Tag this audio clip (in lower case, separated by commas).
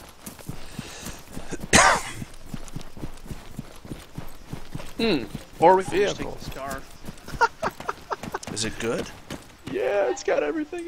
speech